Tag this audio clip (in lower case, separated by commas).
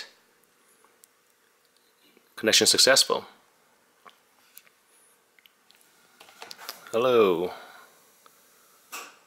speech